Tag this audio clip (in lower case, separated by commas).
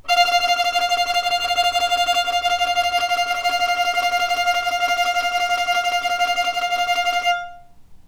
bowed string instrument, music, musical instrument